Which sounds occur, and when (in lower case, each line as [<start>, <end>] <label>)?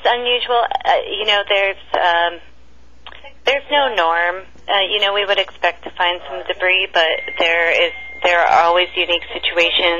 [0.00, 2.42] woman speaking
[0.00, 9.95] mechanisms
[3.02, 3.12] tick
[3.19, 4.42] woman speaking
[4.67, 7.87] woman speaking
[7.04, 9.56] alarm
[7.25, 7.31] tick
[7.92, 8.19] breathing
[8.17, 9.95] woman speaking